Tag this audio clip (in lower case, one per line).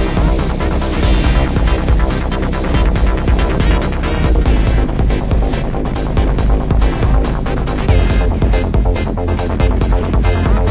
music
electronica